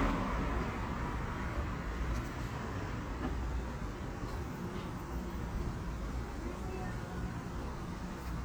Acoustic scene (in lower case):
residential area